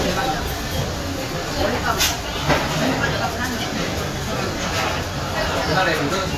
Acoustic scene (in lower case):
crowded indoor space